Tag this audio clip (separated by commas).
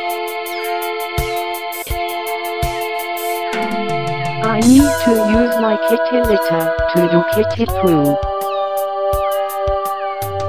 Music, Domestic animals, Meow, Speech, Cat